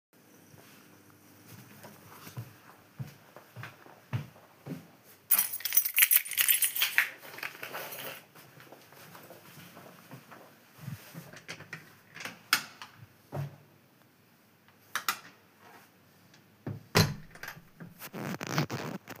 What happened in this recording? I pick up my keys and put them into my pocket. Then I open the door and leave the apartment.